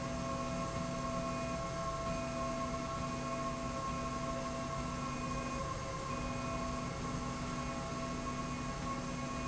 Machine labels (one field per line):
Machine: slide rail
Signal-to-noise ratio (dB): -6 dB